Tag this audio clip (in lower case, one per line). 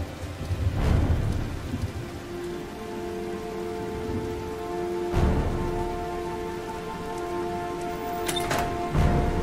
raindrop
rain on surface
music